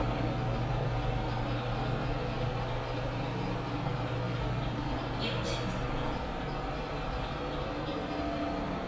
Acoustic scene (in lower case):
elevator